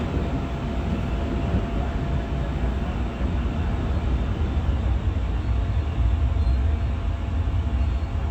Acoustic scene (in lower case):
subway train